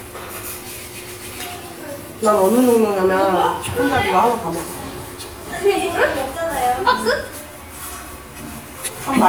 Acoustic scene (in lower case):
crowded indoor space